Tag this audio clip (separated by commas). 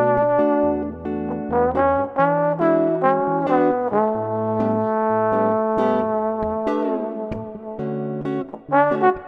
Guitar, Electric guitar, Acoustic guitar, Musical instrument, Strum, Plucked string instrument, Music